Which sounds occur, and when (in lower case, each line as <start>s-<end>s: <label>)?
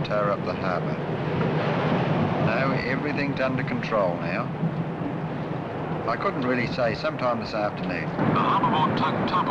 0.0s-0.9s: man speaking
0.0s-9.5s: conversation
0.0s-9.5s: television
0.0s-9.5s: surf
2.4s-4.4s: man speaking
6.0s-8.0s: man speaking
8.3s-9.1s: man speaking
9.2s-9.5s: man speaking